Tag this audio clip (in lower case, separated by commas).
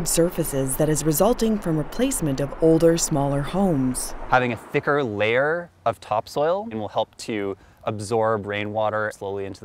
speech